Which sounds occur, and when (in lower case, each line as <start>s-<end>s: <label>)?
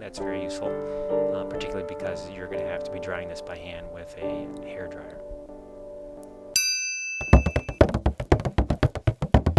0.0s-0.7s: male speech
0.0s-6.4s: music
0.8s-1.0s: breathing
1.1s-4.5s: male speech
3.4s-3.5s: tick
4.5s-4.6s: tick
4.6s-5.2s: male speech
5.0s-5.1s: tick
6.1s-6.3s: tick
6.5s-7.8s: ding
7.2s-9.5s: music